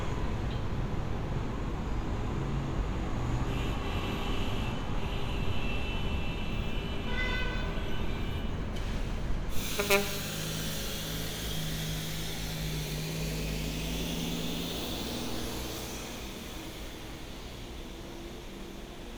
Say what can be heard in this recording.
large-sounding engine, car horn